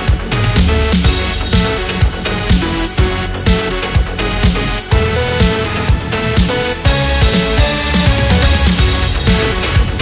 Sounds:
music

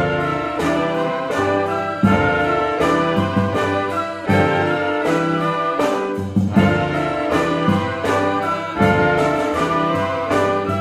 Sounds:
brass instrument, trumpet

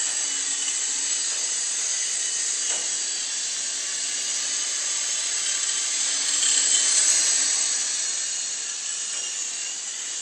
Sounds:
helicopter

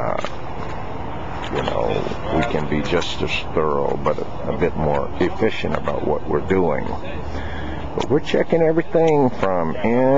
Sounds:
vehicle, truck, speech, outside, urban or man-made

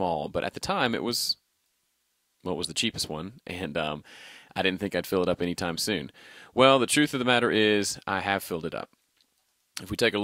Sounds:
speech

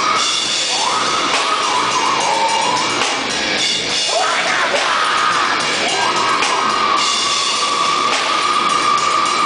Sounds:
music

